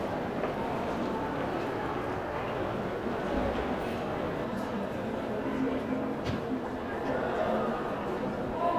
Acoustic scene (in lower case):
crowded indoor space